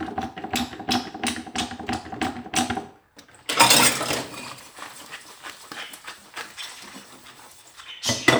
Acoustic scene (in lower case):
kitchen